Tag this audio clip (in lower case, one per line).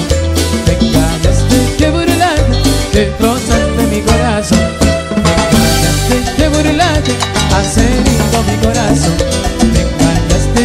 music